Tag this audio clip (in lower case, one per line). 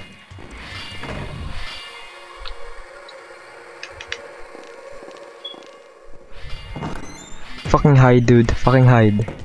speech